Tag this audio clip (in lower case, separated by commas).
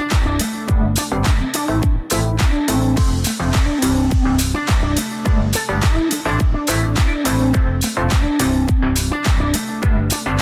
music